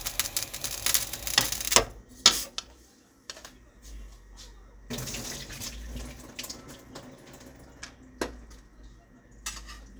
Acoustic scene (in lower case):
kitchen